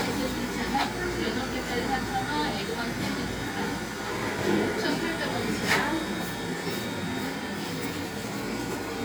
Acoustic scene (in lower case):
cafe